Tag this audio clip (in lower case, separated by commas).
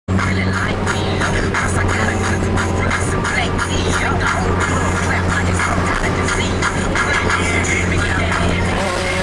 vehicle, race car, car